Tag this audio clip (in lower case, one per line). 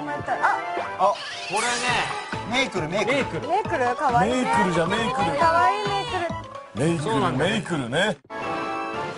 speech
music